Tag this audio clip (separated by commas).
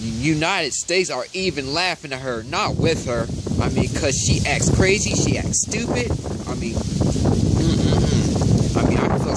Speech, outside, rural or natural